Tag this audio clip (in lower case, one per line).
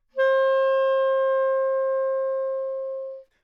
music
musical instrument
wind instrument